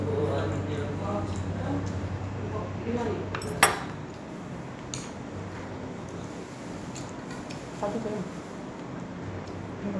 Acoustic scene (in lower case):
restaurant